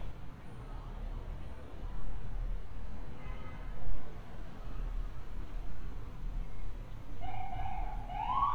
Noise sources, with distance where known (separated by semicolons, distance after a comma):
car horn, far; unidentified alert signal, near